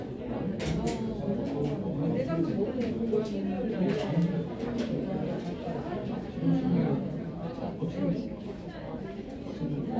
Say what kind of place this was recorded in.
crowded indoor space